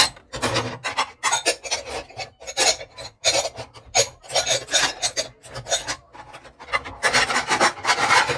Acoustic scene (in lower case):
kitchen